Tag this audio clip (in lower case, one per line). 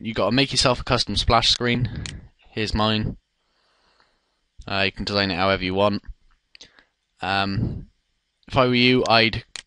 speech